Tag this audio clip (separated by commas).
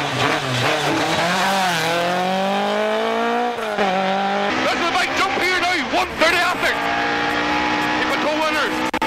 Race car, Vehicle, Car